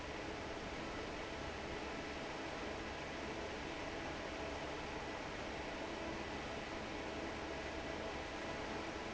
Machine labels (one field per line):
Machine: fan